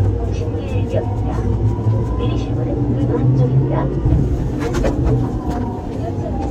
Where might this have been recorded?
on a subway train